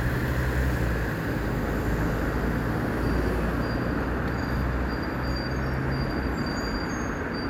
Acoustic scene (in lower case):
street